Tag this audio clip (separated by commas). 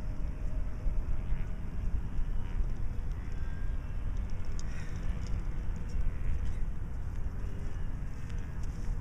Rub